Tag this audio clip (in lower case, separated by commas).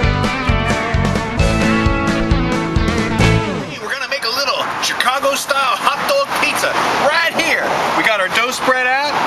speech, music